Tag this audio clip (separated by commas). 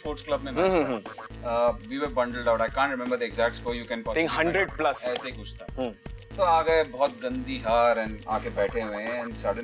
Speech